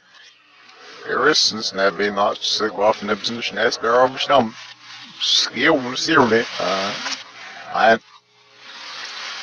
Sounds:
Speech

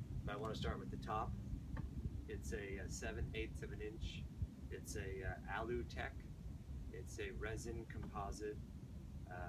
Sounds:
Speech

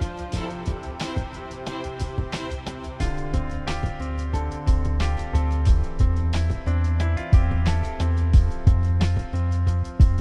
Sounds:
Music

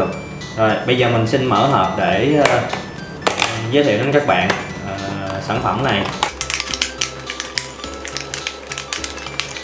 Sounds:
Music, Speech

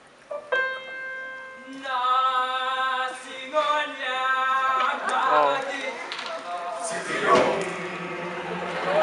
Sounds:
Speech, Male singing, Music

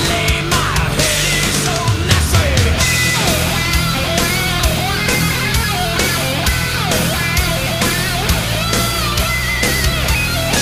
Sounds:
Heavy metal

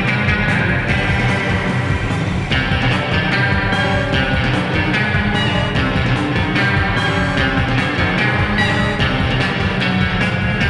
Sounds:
Music, Sampler

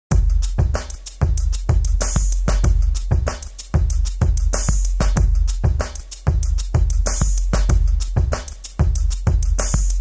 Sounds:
Drum machine, Music

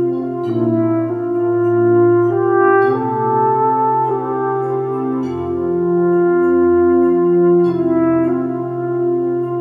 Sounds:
playing french horn

